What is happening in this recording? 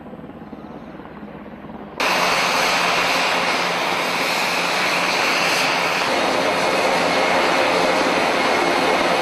A helicopter is idling then is rumbles in the distance